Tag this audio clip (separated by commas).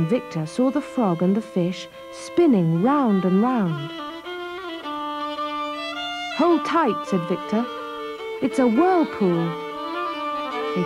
Speech, Violin, Music